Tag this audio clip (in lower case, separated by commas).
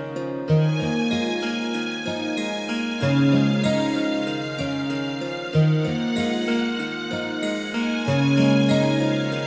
music